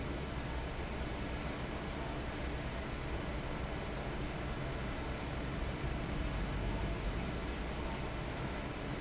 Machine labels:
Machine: fan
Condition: abnormal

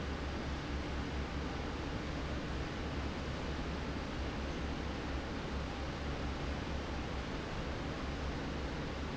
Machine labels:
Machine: fan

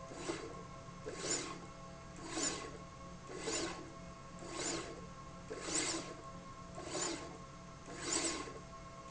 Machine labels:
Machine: slide rail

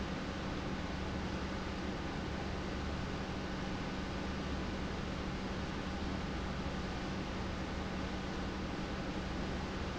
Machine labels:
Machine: pump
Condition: normal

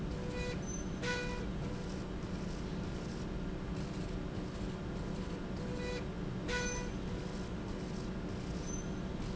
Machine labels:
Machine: slide rail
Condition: normal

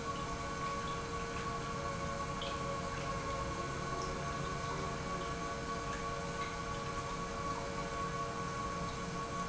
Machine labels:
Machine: pump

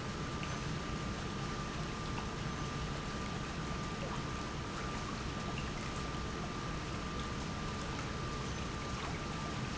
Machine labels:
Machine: pump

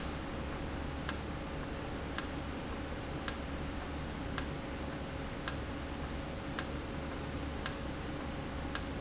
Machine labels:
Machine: valve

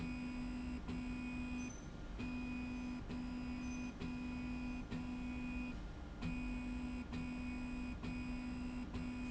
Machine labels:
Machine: slide rail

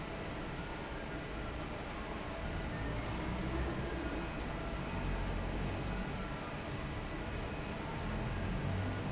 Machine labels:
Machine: fan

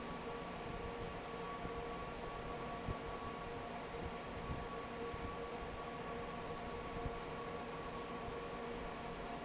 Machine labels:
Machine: fan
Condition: normal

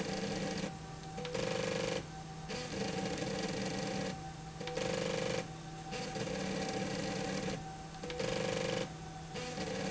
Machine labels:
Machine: slide rail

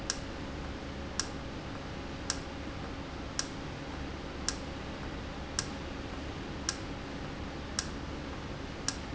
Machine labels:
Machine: valve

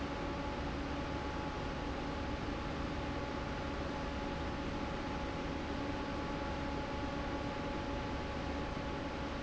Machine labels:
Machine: fan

